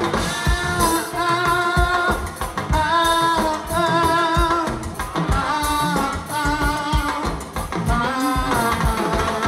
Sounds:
music

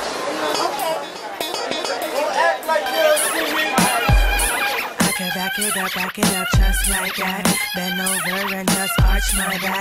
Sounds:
speech
music

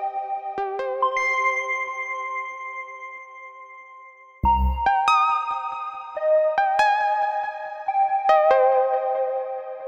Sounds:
music

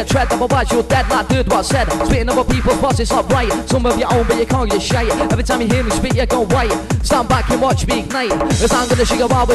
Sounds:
music

